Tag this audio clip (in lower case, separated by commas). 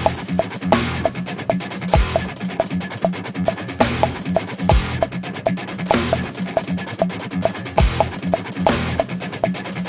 drum kit, playing drum kit, musical instrument